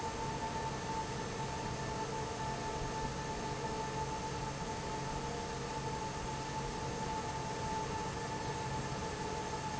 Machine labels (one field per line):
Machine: fan